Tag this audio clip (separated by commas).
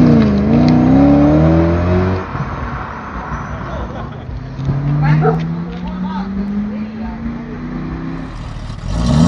Speech